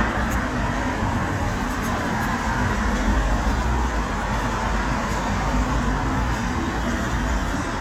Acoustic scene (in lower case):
street